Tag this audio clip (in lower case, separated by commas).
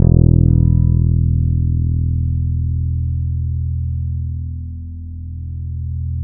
musical instrument, music, plucked string instrument, bass guitar, guitar